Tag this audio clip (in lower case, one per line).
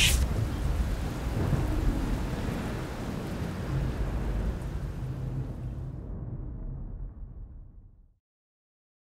rain
rain on surface